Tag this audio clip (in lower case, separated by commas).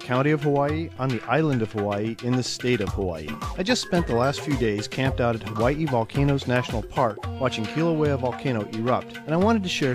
music, speech